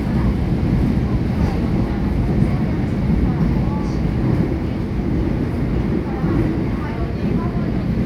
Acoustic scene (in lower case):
subway train